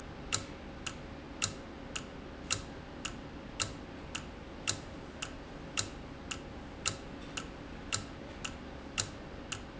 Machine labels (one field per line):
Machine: valve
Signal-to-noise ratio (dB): 0 dB